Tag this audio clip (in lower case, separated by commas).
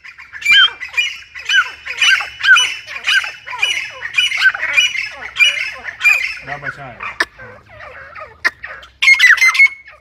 francolin calling